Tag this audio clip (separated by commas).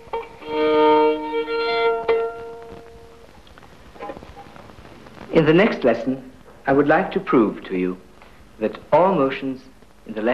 fiddle, Music, Speech, Musical instrument